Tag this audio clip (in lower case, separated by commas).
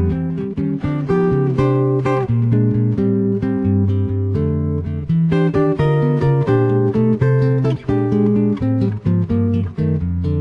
guitar, strum, plucked string instrument, music, electric guitar, acoustic guitar, musical instrument